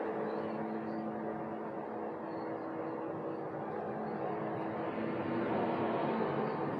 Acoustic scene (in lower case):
bus